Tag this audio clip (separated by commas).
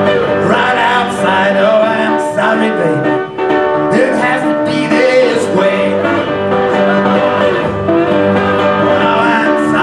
Music, Blues